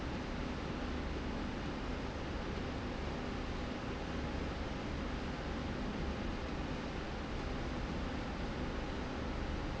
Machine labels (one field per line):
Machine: slide rail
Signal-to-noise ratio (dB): -6 dB